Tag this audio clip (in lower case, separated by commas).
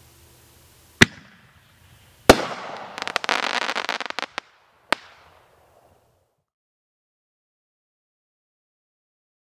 fireworks, fireworks banging